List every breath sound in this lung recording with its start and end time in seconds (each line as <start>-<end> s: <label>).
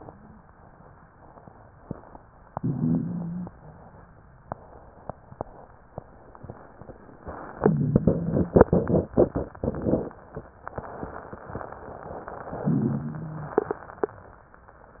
2.51-3.51 s: inhalation
2.51-3.51 s: wheeze
12.63-13.62 s: inhalation
12.63-13.62 s: wheeze